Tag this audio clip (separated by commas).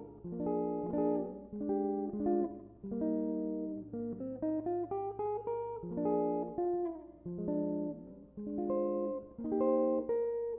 Musical instrument, Plucked string instrument, Strum, Guitar, Music, Electric guitar